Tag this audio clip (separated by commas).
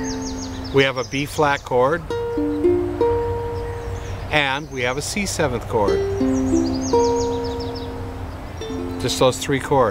Speech, Music